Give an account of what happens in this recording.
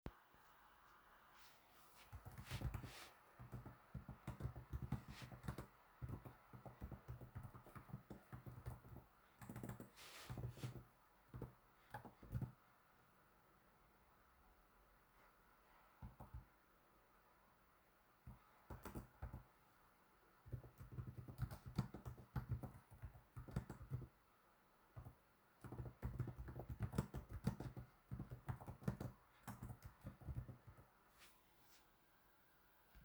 I typed on my keyboard at my laptop. It could be head some sound of my shoes.